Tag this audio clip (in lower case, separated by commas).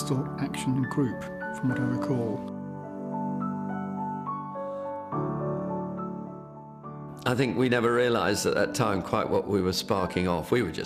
music, speech